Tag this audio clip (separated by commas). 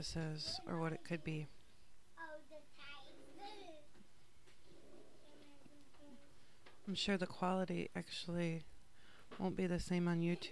Speech